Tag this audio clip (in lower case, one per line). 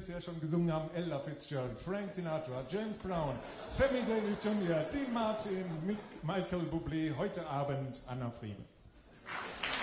speech